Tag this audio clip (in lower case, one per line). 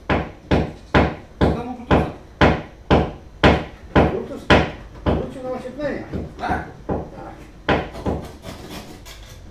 tools
hammer